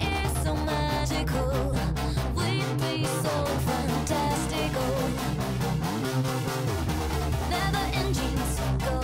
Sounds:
music
electronic music

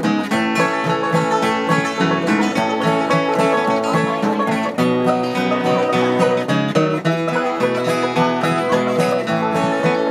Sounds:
musical instrument
plucked string instrument
guitar
strum
acoustic guitar
music

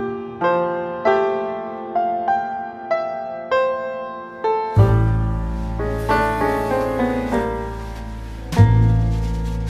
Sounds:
electric piano
music

